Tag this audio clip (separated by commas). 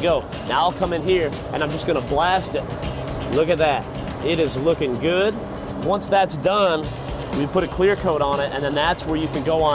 Music, Speech, Spray